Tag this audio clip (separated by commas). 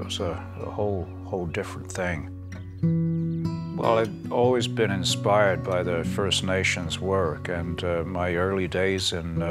Speech, Music